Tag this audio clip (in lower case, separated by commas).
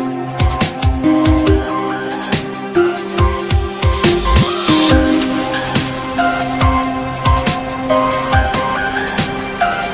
electronic music, music